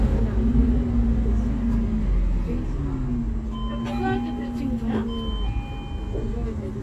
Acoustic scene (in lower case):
bus